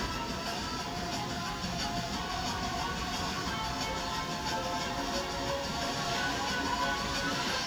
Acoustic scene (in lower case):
park